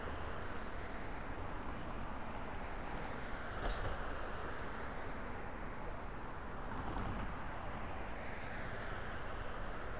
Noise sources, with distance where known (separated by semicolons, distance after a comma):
engine of unclear size